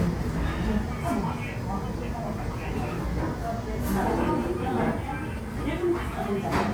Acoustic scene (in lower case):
restaurant